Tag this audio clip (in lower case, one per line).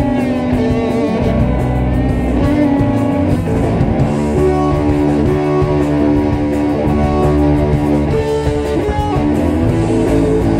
music
exciting music